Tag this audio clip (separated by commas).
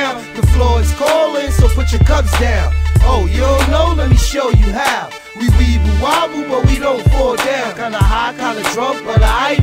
Music